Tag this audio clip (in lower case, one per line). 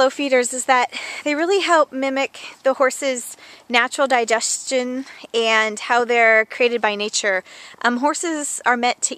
speech